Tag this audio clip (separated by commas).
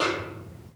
Percussion, Musical instrument, Music, Snare drum, Drum